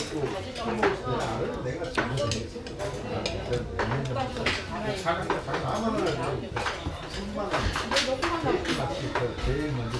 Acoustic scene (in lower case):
restaurant